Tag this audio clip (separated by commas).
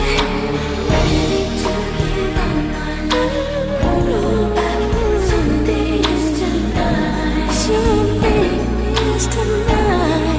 Pop music